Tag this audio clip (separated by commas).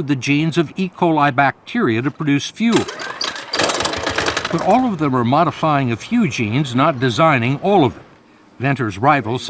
Speech, inside a large room or hall